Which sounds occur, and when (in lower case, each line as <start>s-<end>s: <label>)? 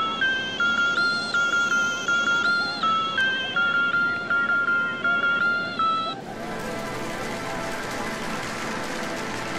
0.0s-6.2s: music
0.0s-9.5s: surf
6.5s-9.5s: applause